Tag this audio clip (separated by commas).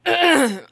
Respiratory sounds, Human voice, Cough